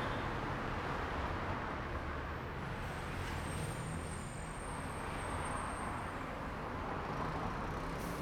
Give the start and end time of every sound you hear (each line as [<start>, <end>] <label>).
[0.00, 3.62] car wheels rolling
[0.00, 7.84] car
[2.48, 6.63] bus brakes
[2.48, 8.21] bus
[3.26, 5.03] motorcycle
[3.26, 5.03] motorcycle engine accelerating
[7.78, 8.21] motorcycle
[7.78, 8.21] motorcycle engine accelerating
[7.80, 8.21] bus compressor